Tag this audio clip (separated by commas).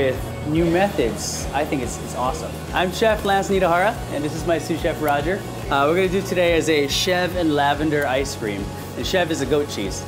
Music, Speech